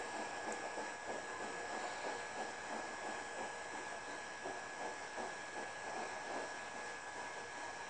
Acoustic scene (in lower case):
subway train